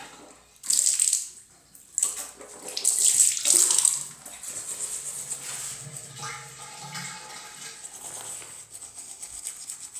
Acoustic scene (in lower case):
restroom